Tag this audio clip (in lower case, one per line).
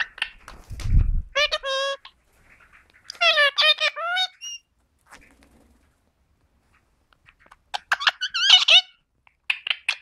parrot talking